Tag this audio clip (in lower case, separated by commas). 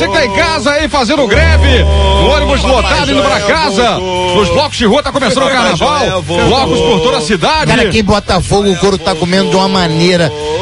music, speech